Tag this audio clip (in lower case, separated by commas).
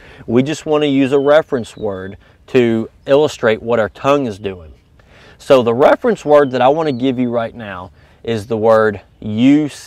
speech